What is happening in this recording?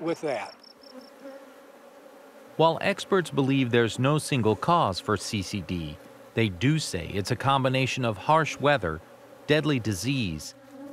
An adult male is speaking, crickets are chirping, and insects are buzzing